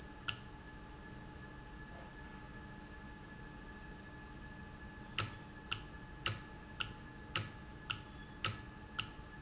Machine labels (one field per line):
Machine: valve